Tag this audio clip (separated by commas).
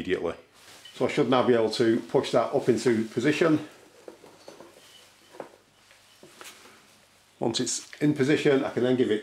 Speech, inside a small room